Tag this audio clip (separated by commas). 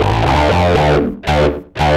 Plucked string instrument, Musical instrument, Guitar, Music, Electric guitar